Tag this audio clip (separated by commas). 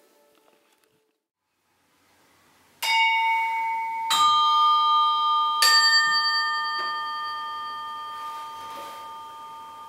Musical instrument, Music